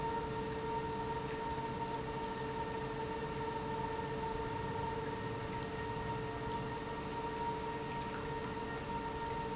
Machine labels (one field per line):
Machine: pump